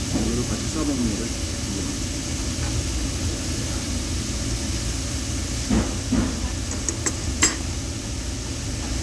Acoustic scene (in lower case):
crowded indoor space